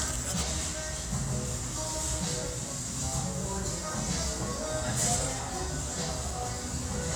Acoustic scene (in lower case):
restaurant